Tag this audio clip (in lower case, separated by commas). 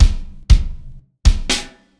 bass drum, percussion, drum, musical instrument, music